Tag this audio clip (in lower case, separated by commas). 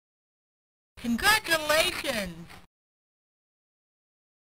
speech